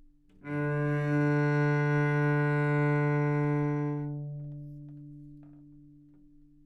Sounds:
bowed string instrument
musical instrument
music

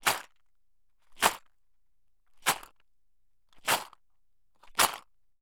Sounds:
rattle

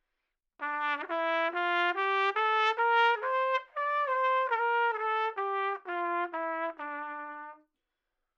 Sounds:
brass instrument
music
trumpet
musical instrument

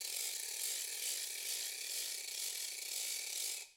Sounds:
mechanisms
ratchet
music
musical instrument
percussion

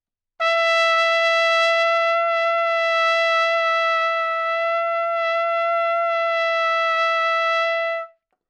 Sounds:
musical instrument
brass instrument
music
trumpet

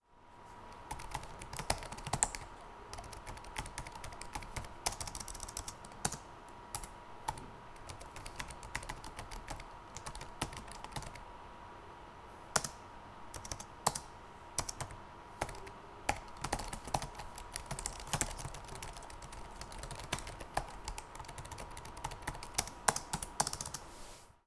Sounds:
home sounds
typing
computer keyboard

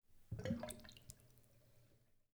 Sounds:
sink (filling or washing)
home sounds

